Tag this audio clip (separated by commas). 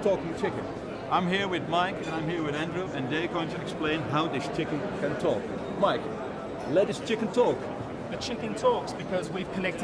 Speech